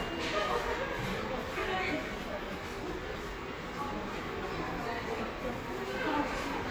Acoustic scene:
subway station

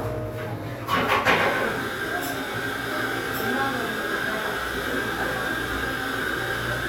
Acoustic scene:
cafe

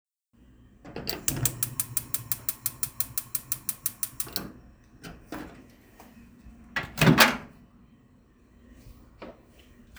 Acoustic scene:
kitchen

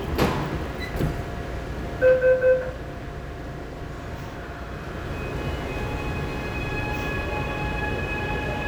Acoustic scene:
subway train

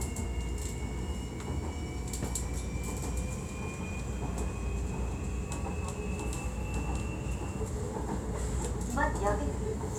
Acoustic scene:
subway train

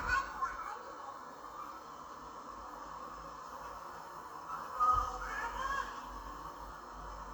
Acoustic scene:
park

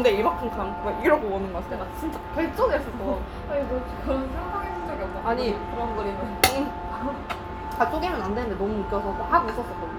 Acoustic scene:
restaurant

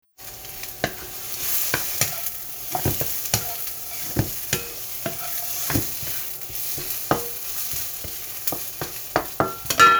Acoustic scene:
kitchen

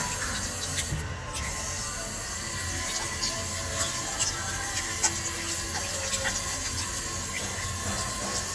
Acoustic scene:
restroom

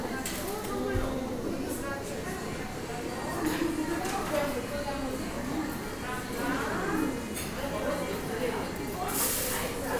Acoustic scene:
cafe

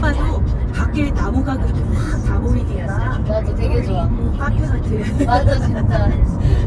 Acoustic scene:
car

